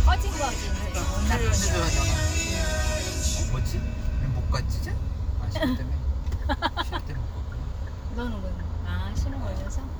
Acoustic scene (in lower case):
car